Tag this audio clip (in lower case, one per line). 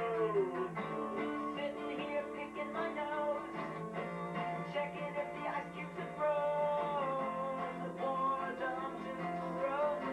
inside a small room
music